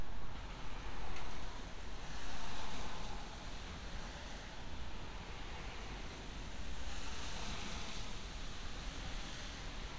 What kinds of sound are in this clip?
background noise